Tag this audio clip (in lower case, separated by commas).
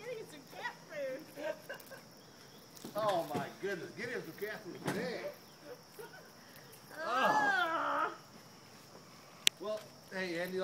domestic animals, speech, cat